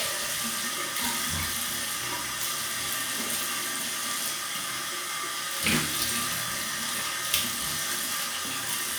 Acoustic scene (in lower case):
restroom